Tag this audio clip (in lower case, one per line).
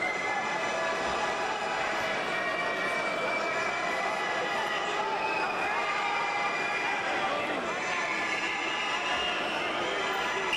inside a large room or hall